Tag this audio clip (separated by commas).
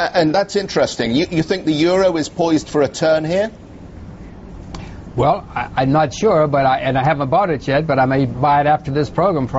Speech